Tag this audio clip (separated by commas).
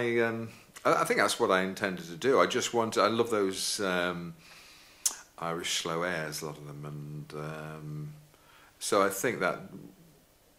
Speech